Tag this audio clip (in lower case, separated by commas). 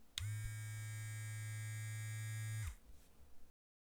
home sounds